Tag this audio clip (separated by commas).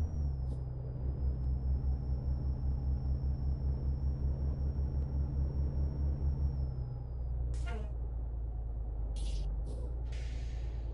Beep